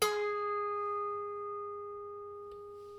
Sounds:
music, musical instrument, harp

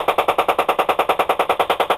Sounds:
gunfire, explosion

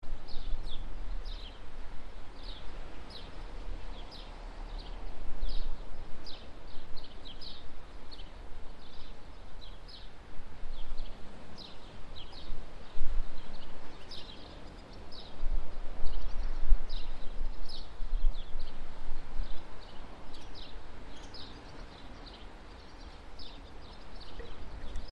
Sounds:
ocean, water

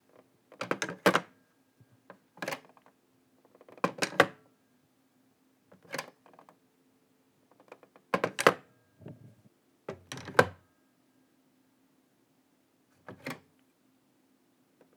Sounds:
alarm, telephone

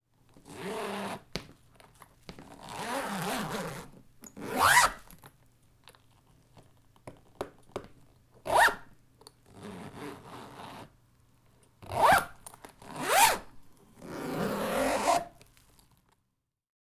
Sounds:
zipper (clothing), home sounds

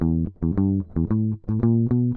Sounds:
plucked string instrument, guitar, musical instrument, music

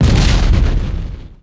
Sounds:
explosion

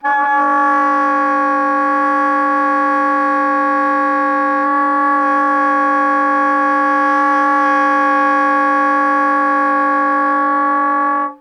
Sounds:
woodwind instrument, music, musical instrument

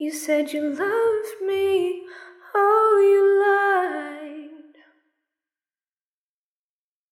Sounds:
female singing, singing, human voice

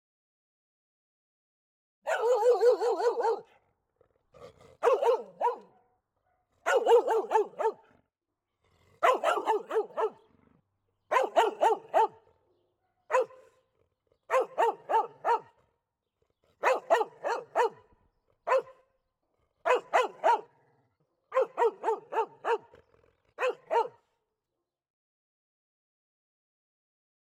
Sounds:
animal, bark, pets, dog

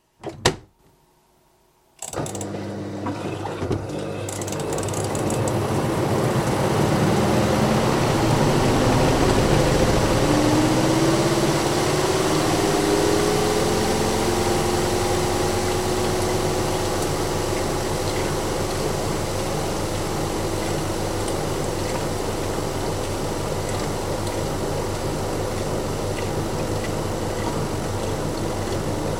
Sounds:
engine

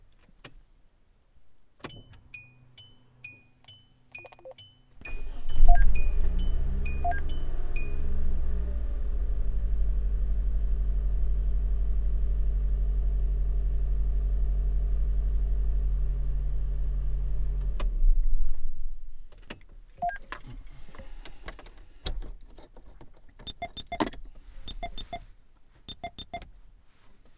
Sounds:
engine, engine starting

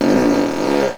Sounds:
fart

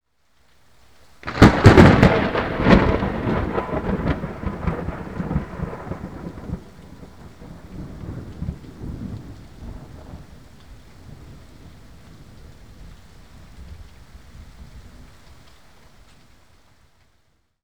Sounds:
thunderstorm, thunder

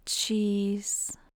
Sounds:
speech, human voice, woman speaking

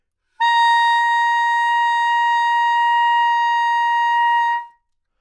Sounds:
wind instrument, music, musical instrument

